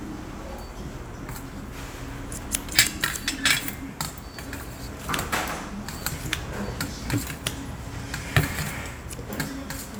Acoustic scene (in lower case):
restaurant